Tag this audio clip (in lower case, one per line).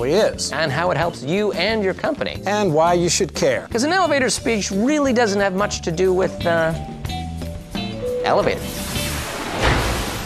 music
speech